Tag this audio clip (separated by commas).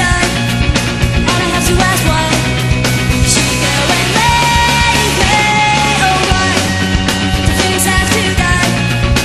Music